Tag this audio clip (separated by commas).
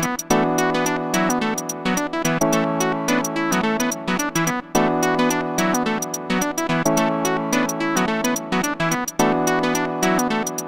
Music